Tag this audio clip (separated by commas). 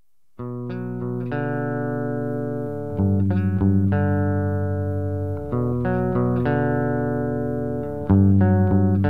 Music